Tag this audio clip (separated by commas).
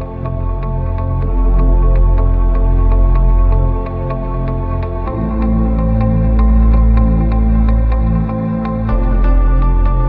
Music, Dubstep, Electronic music